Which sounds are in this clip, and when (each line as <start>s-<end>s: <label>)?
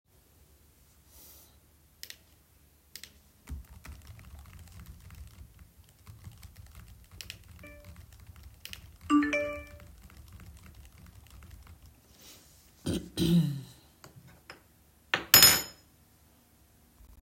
3.4s-12.1s: keyboard typing
8.9s-9.7s: phone ringing